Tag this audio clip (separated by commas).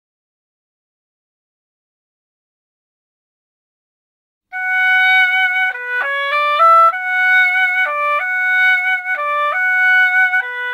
playing oboe